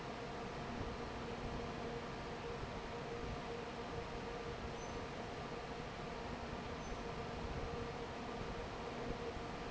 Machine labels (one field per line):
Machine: fan